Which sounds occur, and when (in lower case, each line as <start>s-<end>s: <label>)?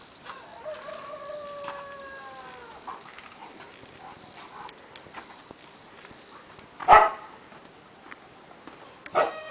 0.0s-9.5s: wind
0.2s-1.0s: dog
0.3s-2.8s: crowing
1.6s-2.0s: dog
2.8s-3.8s: dog
4.0s-5.3s: dog
4.7s-5.0s: generic impact sounds
5.5s-5.6s: generic impact sounds
6.3s-6.5s: dog
6.6s-6.7s: tick
6.8s-7.3s: bark
7.4s-7.7s: footsteps
8.1s-8.2s: footsteps
8.6s-8.8s: footsteps
9.0s-9.2s: generic impact sounds
9.1s-9.4s: bark
9.1s-9.5s: rooster